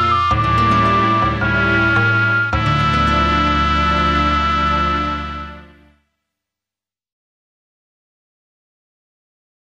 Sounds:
music

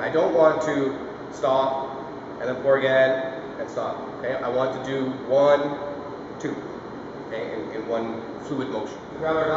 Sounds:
speech

